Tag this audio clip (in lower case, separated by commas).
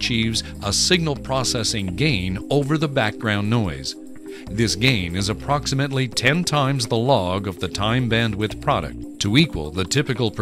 speech, music